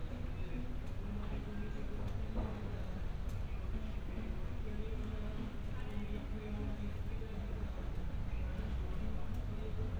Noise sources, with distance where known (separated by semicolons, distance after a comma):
music from an unclear source, far